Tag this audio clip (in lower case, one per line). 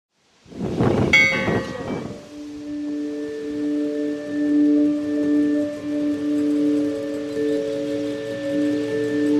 outside, rural or natural
music